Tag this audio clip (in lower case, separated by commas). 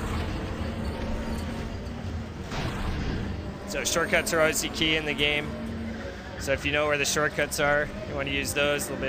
speech